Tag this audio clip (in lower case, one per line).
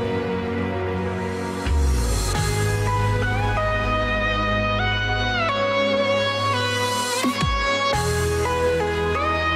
music
soundtrack music